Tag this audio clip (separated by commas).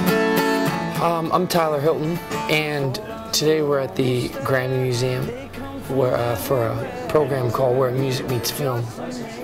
Speech, Singing, Music